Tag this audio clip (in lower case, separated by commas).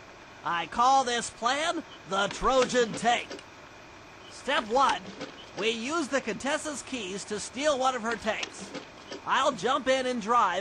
speech